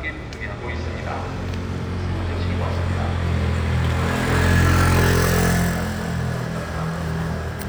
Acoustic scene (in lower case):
residential area